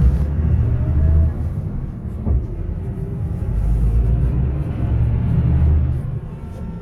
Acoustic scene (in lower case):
bus